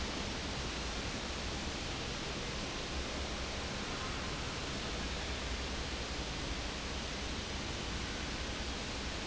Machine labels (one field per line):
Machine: fan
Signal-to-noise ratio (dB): -6 dB